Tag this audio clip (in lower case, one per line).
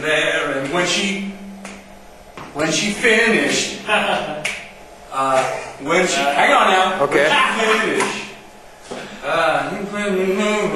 speech